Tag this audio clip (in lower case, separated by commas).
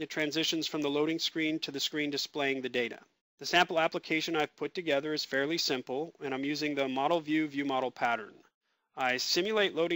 speech